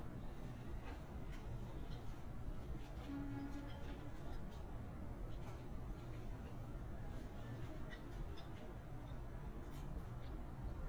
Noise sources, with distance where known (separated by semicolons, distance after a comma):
background noise